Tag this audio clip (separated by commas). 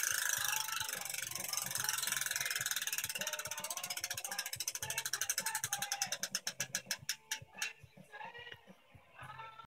Music